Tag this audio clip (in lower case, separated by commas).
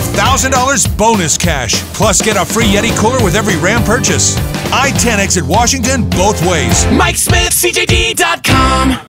music, speech